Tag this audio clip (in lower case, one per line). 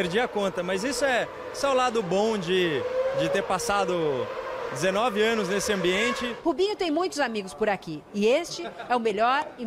speech